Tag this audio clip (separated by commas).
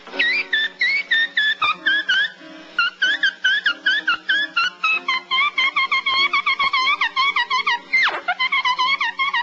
Brass instrument, Music, Musical instrument, Jazz, Trumpet